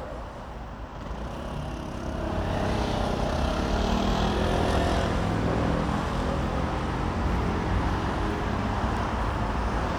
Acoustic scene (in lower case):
street